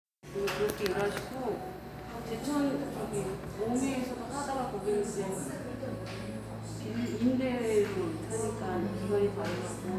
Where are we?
in a cafe